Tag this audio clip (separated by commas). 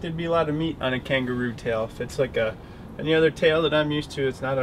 Speech